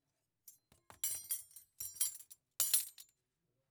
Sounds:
silverware, home sounds

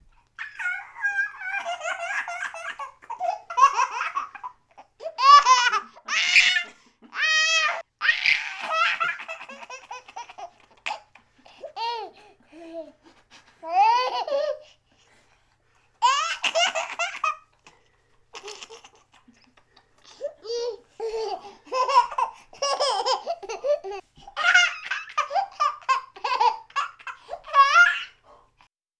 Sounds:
Laughter, Human voice

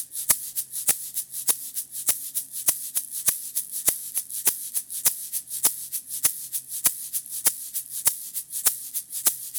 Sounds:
Percussion, Musical instrument, Music, Rattle (instrument)

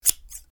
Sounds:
Scissors, home sounds

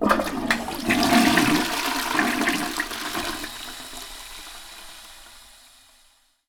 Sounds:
Toilet flush, Domestic sounds

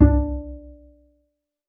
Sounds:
Music, Musical instrument, Bowed string instrument

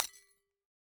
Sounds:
Shatter, Glass

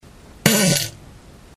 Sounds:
Fart

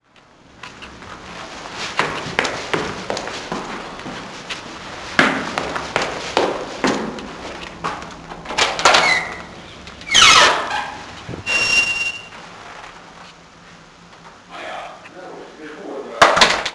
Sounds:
Run

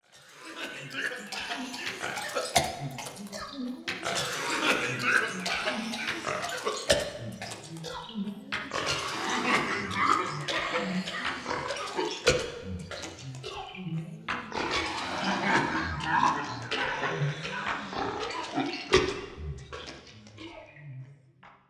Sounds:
Respiratory sounds, Cough

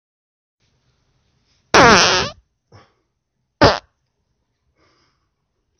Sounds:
Fart

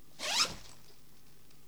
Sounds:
Domestic sounds, Zipper (clothing)

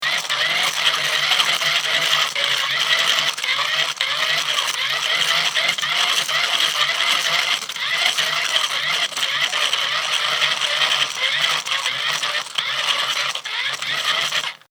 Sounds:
Mechanisms

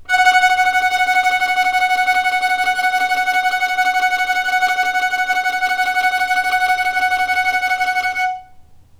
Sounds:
Music, Bowed string instrument, Musical instrument

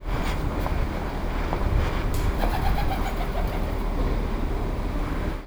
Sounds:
Wild animals, Bird, Animal

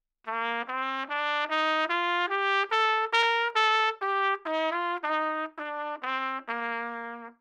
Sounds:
Brass instrument, Trumpet, Musical instrument, Music

